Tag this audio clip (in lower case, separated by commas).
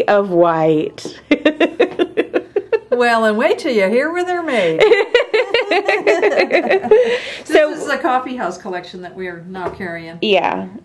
speech, laughter